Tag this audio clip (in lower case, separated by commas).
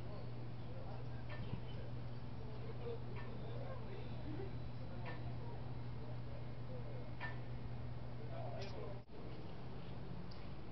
speech